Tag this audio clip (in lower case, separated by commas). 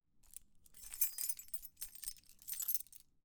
keys jangling, home sounds